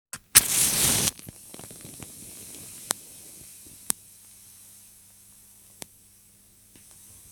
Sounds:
fire

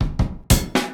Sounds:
music
percussion
musical instrument
drum
drum kit

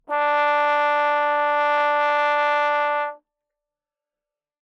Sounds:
brass instrument
music
musical instrument

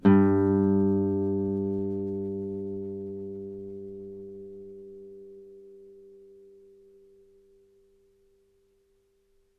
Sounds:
musical instrument
guitar
music
plucked string instrument

